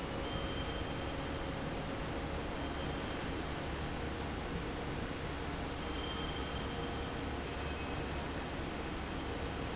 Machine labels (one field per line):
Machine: fan